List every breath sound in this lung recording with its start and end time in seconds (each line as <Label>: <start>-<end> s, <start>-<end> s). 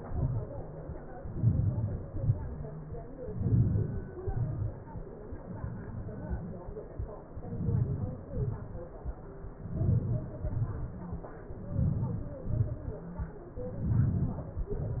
Inhalation: 1.44-1.94 s, 3.44-4.00 s, 7.54-8.18 s, 9.77-10.29 s, 11.79-12.38 s, 13.89-14.54 s
Exhalation: 2.10-2.51 s, 4.28-4.69 s, 8.40-8.89 s, 10.52-11.04 s, 12.48-12.93 s, 14.69-15.00 s